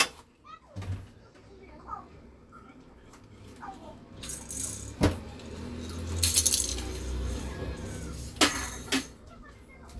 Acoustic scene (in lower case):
kitchen